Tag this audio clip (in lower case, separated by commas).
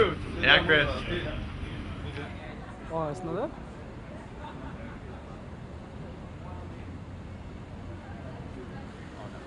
speech